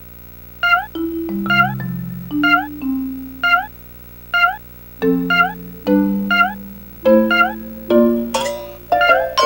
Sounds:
marimba, glockenspiel, mallet percussion

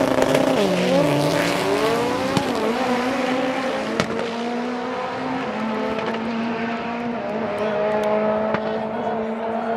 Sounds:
speech

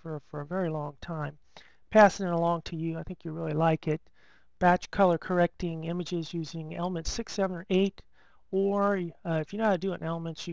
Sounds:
speech

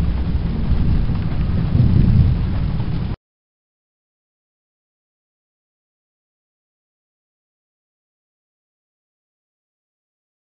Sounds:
thunderstorm, thunder, rain

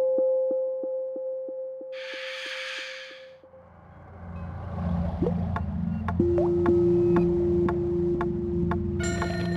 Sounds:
music

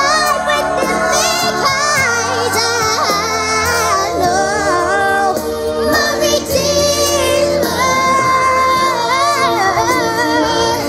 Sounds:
outside, urban or man-made, singing, music

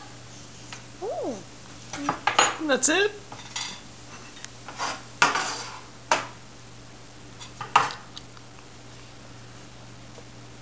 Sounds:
bird, pets, dishes, pots and pans, speech

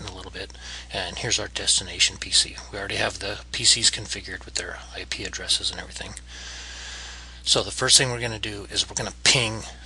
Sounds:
speech

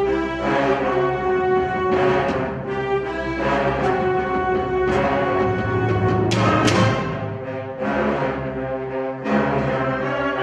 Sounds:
percussion, music

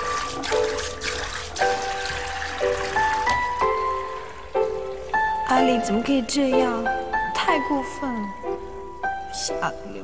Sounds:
water, music, speech

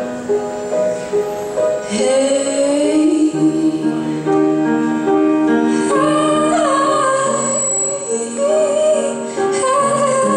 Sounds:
female singing, music

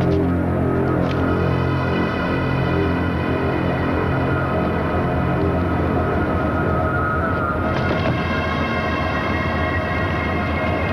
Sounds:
music, scary music

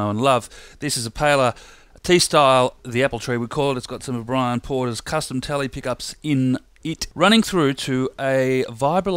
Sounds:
speech

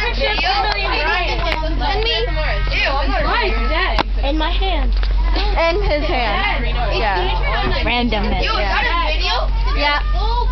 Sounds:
vehicle, bus, speech

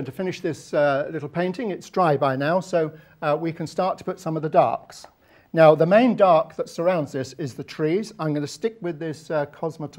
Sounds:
speech

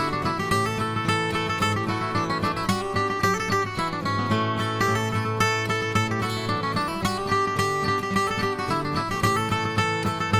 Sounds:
musical instrument, music, plucked string instrument, acoustic guitar, guitar

